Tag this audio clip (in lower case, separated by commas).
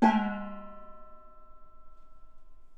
gong, musical instrument, percussion, music